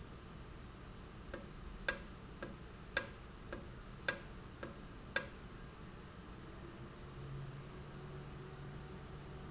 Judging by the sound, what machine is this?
valve